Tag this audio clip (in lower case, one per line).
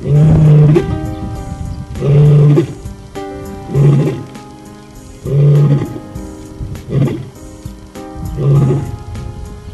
music
animal
wild animals